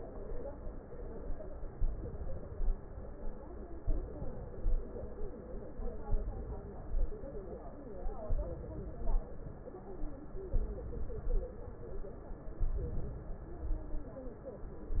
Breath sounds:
Inhalation: 1.77-2.58 s, 3.87-4.65 s, 6.08-6.84 s, 8.28-8.95 s, 10.54-11.27 s, 12.63-13.30 s
Exhalation: 2.58-3.29 s, 4.65-5.30 s, 6.84-7.47 s, 8.95-9.57 s, 11.27-11.89 s, 13.30-13.85 s

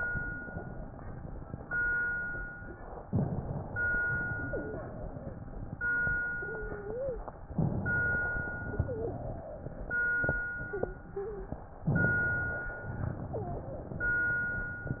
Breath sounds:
Inhalation: 3.06-3.99 s, 7.56-8.35 s, 11.87-12.80 s
Exhalation: 4.07-7.44 s, 8.45-11.65 s, 12.88-15.00 s
Wheeze: 4.50-4.82 s, 6.41-7.26 s, 8.67-9.19 s, 10.70-11.55 s, 13.32-13.71 s

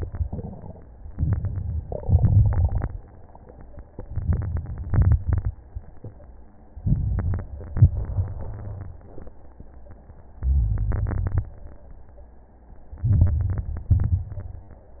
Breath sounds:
Inhalation: 1.15-1.99 s, 4.00-4.84 s, 6.86-7.50 s, 10.44-10.88 s, 13.01-13.91 s
Exhalation: 2.02-2.86 s, 4.90-5.54 s, 7.71-8.57 s, 10.91-11.48 s, 13.93-14.83 s
Crackles: 1.15-1.99 s, 2.02-2.86 s, 4.00-4.84 s, 4.90-5.54 s, 6.86-7.50 s, 7.71-8.57 s, 10.44-10.88 s, 10.91-11.48 s, 13.01-13.91 s, 13.93-14.83 s

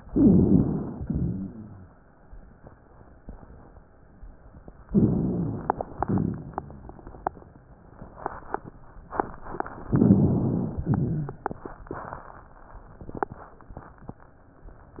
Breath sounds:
Inhalation: 0.11-0.99 s, 4.88-5.83 s, 9.90-10.85 s
Exhalation: 1.02-1.90 s, 5.96-6.91 s, 10.89-11.56 s
Rhonchi: 0.11-0.99 s, 1.02-1.90 s, 4.88-5.83 s, 5.96-6.91 s, 9.90-10.85 s, 10.89-11.56 s

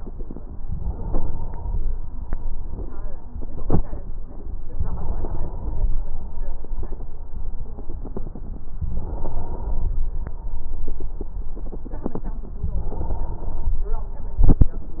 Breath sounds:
Inhalation: 0.63-1.96 s, 4.66-6.00 s, 8.79-10.12 s, 12.56-13.90 s

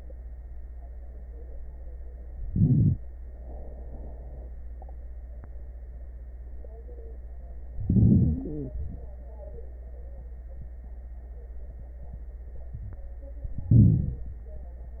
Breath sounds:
Inhalation: 2.41-3.00 s, 7.77-8.76 s, 13.69-14.34 s
Exhalation: 3.32-4.49 s, 8.79-9.21 s
Crackles: 7.77-8.76 s

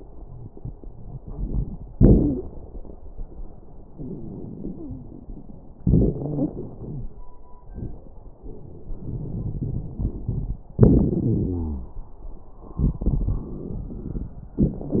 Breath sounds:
Inhalation: 3.89-5.79 s, 9.07-10.59 s, 12.79-14.57 s
Exhalation: 1.95-2.42 s, 5.79-7.08 s, 10.78-11.95 s, 14.61-15.00 s
Wheeze: 0.19-0.46 s, 0.79-1.18 s, 1.95-2.42 s, 5.79-6.49 s, 6.77-7.12 s, 11.23-11.95 s
Crackles: 3.89-5.79 s, 9.07-10.59 s, 12.79-14.57 s, 14.61-15.00 s

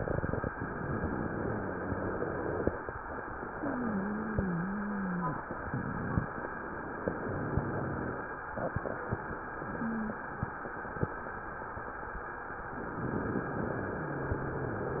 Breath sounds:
Inhalation: 0.53-2.73 s, 12.71-15.00 s
Exhalation: 3.45-6.30 s
Wheeze: 1.33-2.73 s, 3.45-5.45 s, 9.64-10.22 s
Rhonchi: 7.15-8.26 s, 14.00-15.00 s

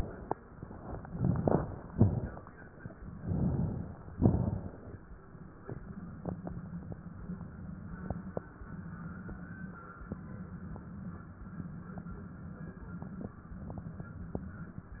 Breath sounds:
Inhalation: 0.87-1.88 s, 3.14-4.12 s
Exhalation: 1.89-2.65 s, 4.14-5.12 s
Crackles: 1.89-2.65 s, 4.14-5.12 s

